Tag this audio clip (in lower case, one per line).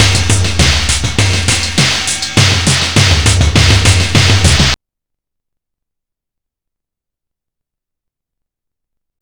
music
percussion
musical instrument
drum